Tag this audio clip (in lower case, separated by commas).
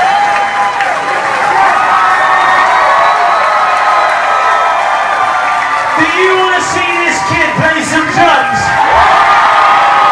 speech